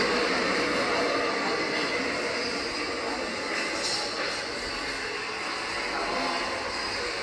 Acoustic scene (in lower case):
subway station